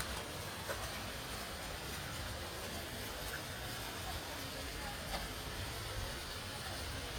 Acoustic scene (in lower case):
park